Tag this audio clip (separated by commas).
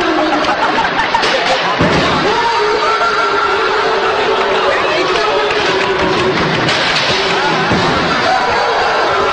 Speech